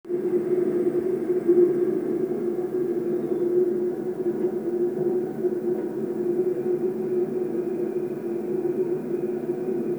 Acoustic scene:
subway train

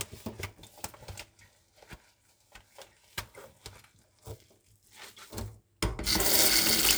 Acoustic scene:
kitchen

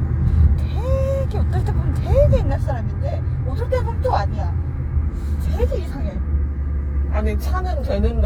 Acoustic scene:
car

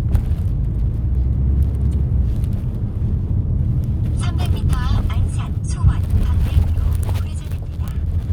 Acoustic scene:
car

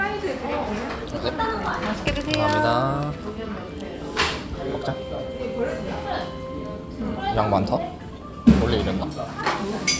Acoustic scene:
restaurant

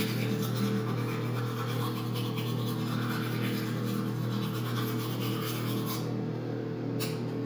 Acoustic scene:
restroom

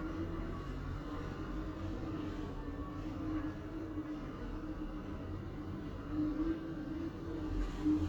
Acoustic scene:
elevator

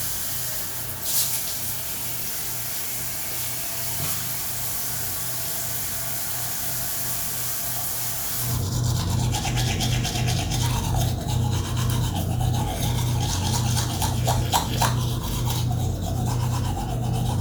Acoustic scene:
restroom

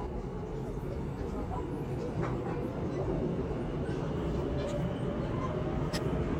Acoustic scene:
subway train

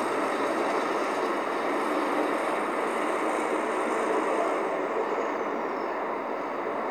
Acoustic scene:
street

